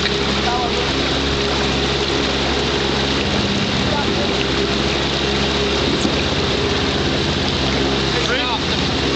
A boat motor is running, water is splashing, and people are speaking